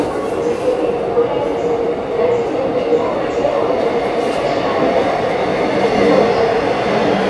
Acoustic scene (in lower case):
subway station